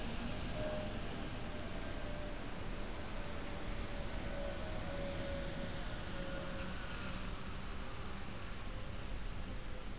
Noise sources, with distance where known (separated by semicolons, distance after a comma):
background noise